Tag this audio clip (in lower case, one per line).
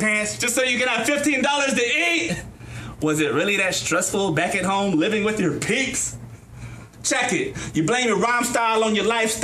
inside a public space
speech